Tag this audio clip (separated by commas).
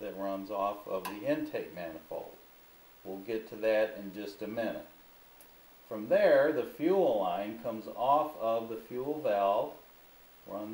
inside a large room or hall, Speech